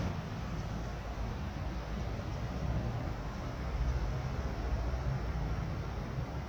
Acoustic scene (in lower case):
residential area